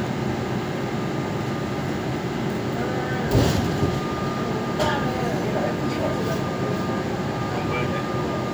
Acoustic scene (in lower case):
subway train